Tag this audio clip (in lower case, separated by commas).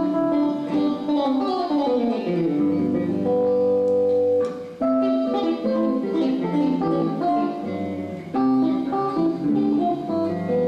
inside a large room or hall, plucked string instrument, guitar, musical instrument, music